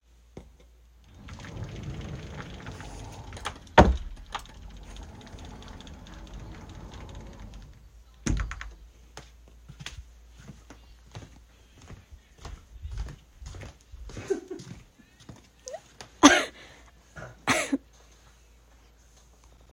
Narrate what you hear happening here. I opened and closed the wardrobe, after that while I was going back to my table, my friend was laughing. Finally, I coughed.